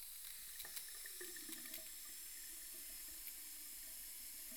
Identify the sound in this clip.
water tap